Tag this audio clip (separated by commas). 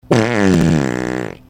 Fart